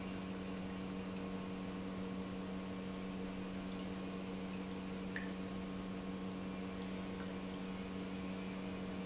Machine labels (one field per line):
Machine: pump